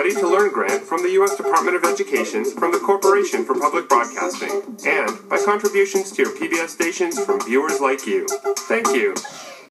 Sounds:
music
speech

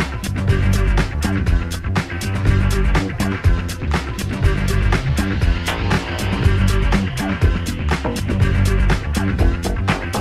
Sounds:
music

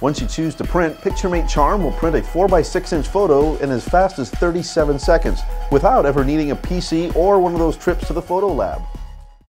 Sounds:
music
speech

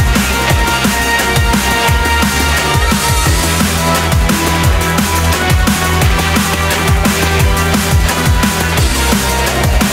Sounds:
drum
musical instrument
music

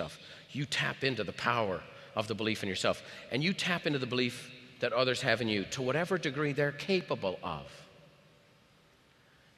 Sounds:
speech

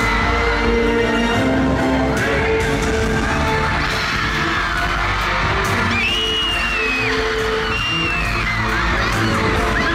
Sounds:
music

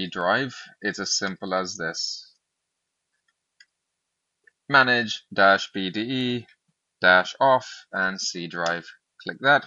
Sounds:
speech

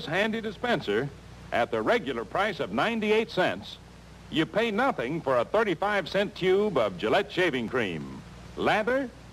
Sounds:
speech

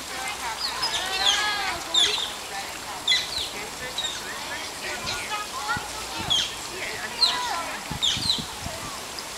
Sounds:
stream
speech

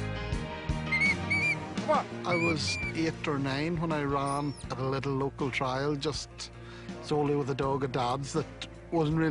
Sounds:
music
speech

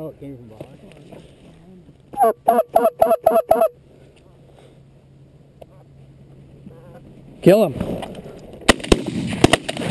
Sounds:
speech

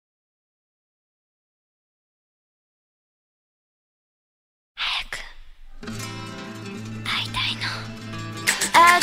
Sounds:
singing
music of asia
music

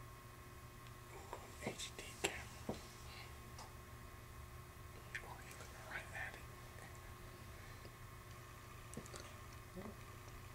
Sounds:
speech

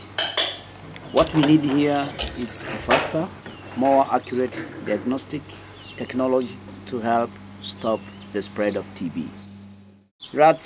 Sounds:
speech
animal

